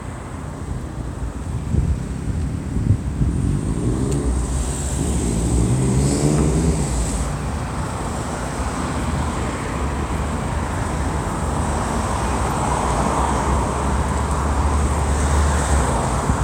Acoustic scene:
street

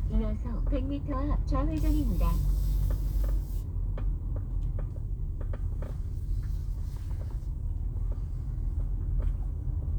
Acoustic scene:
car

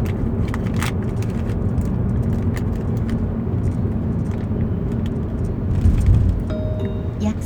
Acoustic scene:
car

